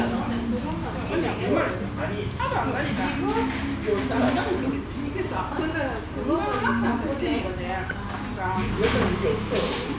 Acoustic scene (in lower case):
restaurant